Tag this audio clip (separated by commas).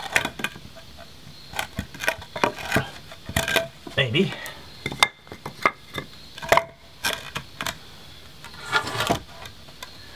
Wood, Speech